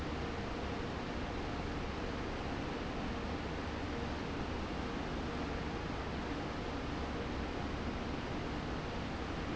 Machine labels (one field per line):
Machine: fan